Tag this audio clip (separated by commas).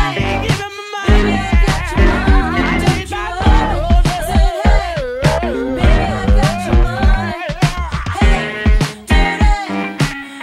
Music, Funk